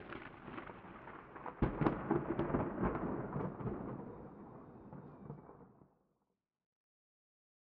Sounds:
Thunderstorm, Thunder

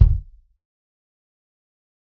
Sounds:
Drum, Percussion, Bass drum, Musical instrument, Music

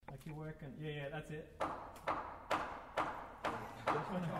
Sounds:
Tools, Wood, Hammer

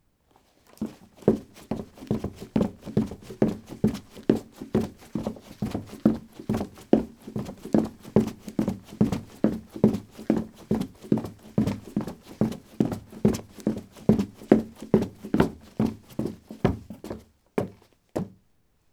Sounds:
Run

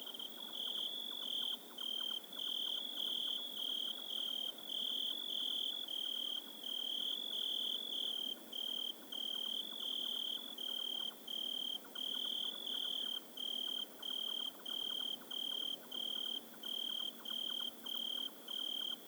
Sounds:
Cricket, Wild animals, Bird, Animal, Insect

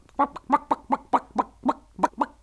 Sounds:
Human voice

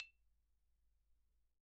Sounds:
Mallet percussion, Music, xylophone, Musical instrument, Percussion

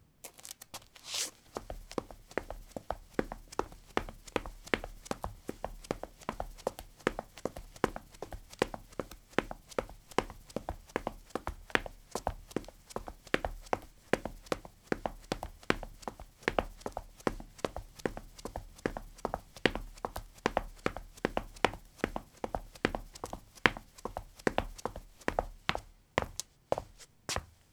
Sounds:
Run

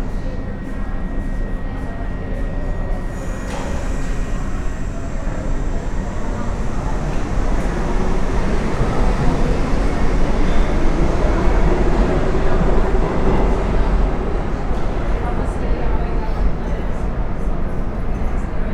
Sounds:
Vehicle, Rail transport, underground

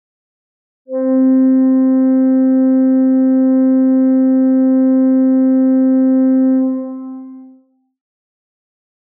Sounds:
Organ, Keyboard (musical), Music, Musical instrument

